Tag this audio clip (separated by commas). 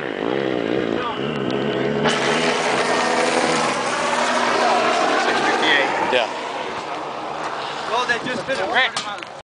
Speech